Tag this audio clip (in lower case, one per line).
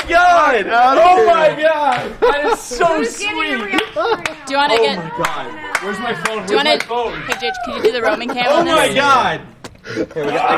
speech